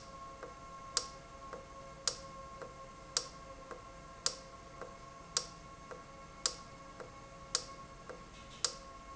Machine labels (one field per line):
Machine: valve